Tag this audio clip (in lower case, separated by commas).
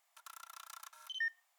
camera, mechanisms